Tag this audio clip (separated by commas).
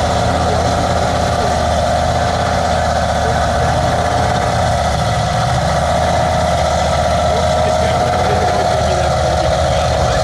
Speech